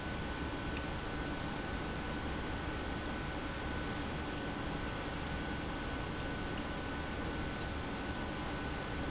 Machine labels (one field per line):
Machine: pump